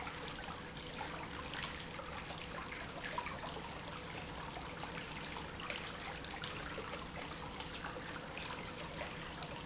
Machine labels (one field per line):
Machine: pump